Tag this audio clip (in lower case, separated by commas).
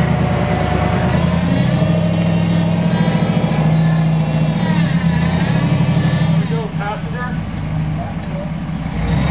speech, vehicle, outside, rural or natural